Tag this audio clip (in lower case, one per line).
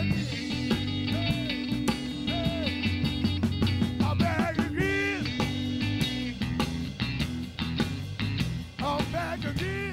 plucked string instrument
blues
music
singing
psychedelic rock
guitar
musical instrument